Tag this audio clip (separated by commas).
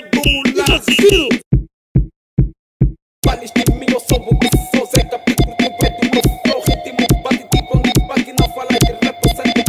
Music, Music of Africa